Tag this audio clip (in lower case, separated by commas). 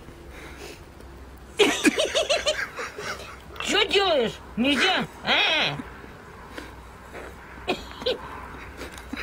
crow, speech, bird